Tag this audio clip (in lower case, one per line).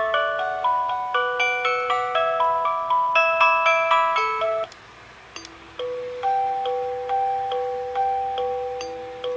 music